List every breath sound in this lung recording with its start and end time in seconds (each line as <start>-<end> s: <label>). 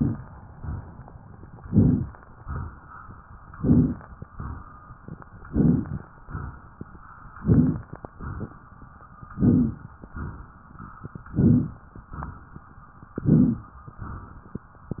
1.57-2.11 s: inhalation
1.57-2.11 s: crackles
2.35-2.96 s: exhalation
3.53-4.06 s: inhalation
3.53-4.06 s: crackles
4.31-4.92 s: exhalation
5.48-6.02 s: inhalation
5.48-6.02 s: crackles
6.26-6.87 s: exhalation
7.40-7.93 s: inhalation
7.40-7.93 s: crackles
8.08-8.69 s: exhalation
9.39-9.93 s: inhalation
9.39-9.93 s: crackles
10.06-10.66 s: exhalation
11.27-11.80 s: inhalation
11.27-11.80 s: crackles
12.11-12.71 s: exhalation
13.22-13.76 s: inhalation
13.22-13.76 s: crackles
14.00-14.61 s: exhalation